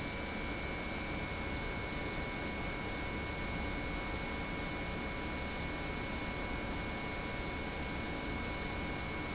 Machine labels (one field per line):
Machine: pump